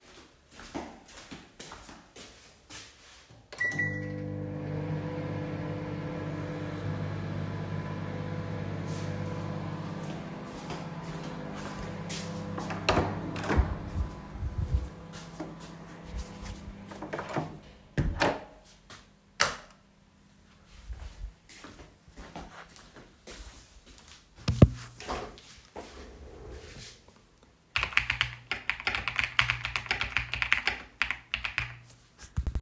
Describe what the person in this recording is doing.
I walked to the microwave to turn it on, then i walked to the door of my bedroom, opened it, went to the other side, closed it and turned on the light. Then i walked to my desk, where I sat on the chair and started typing on my keyboard.